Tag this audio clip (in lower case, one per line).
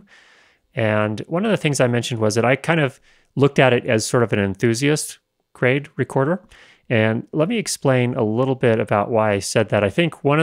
speech